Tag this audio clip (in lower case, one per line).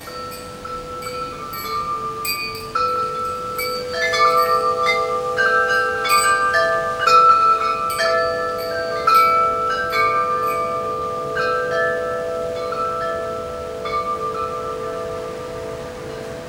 chime
bell
wind chime